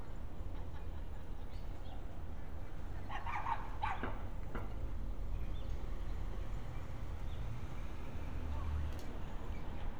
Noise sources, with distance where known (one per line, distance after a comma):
person or small group talking
dog barking or whining, near